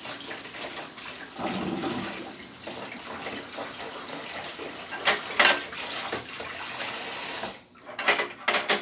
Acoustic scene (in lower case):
kitchen